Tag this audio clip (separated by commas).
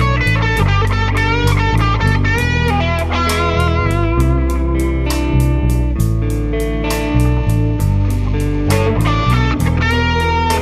Musical instrument, Plucked string instrument, Electric guitar, Music, Guitar